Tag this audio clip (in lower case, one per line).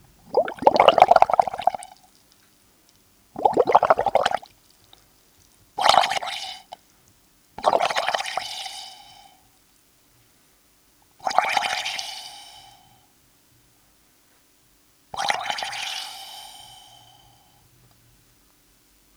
liquid